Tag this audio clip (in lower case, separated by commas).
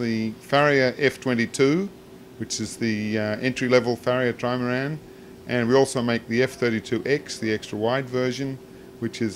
speech